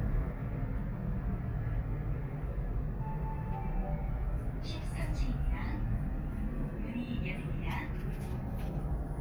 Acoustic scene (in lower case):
elevator